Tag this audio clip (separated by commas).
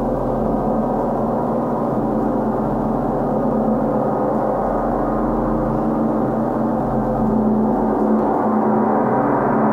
playing gong